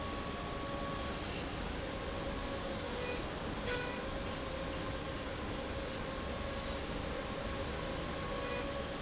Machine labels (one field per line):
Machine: slide rail